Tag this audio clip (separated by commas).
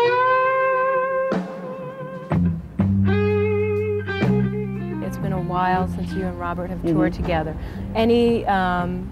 Speech, Music